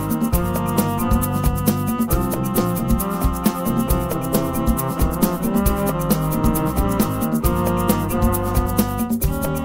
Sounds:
musical instrument, music, cello

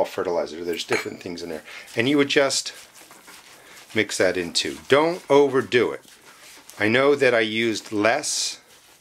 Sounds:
speech, inside a small room

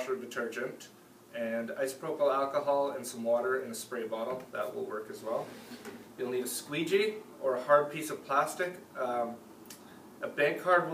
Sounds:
speech

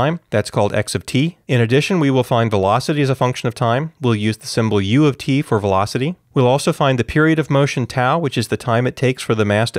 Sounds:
speech

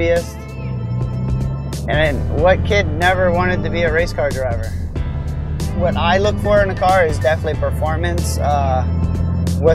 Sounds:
car, vehicle, speech, music

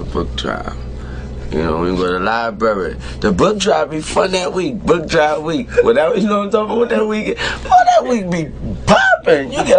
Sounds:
speech

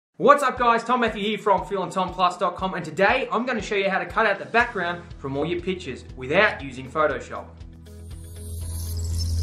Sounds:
speech, inside a small room, music

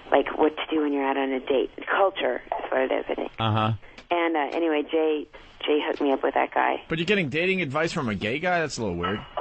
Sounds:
speech

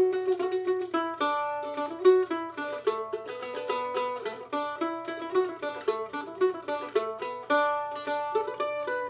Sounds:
music, mandolin

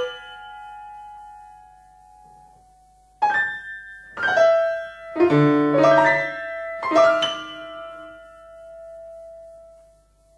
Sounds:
music

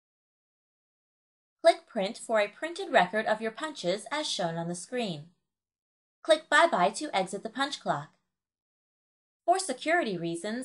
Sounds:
speech

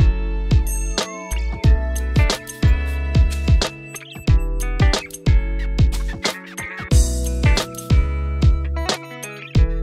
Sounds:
music

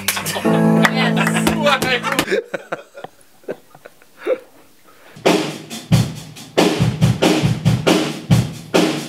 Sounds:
music, speech

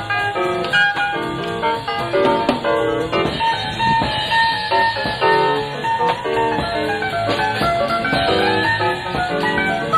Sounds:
jazz, musical instrument, music

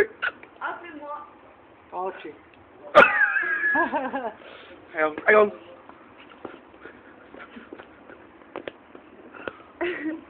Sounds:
speech

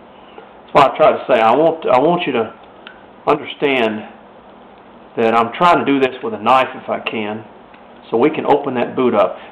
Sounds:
speech

